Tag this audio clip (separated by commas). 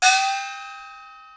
Musical instrument, Music, Percussion, Gong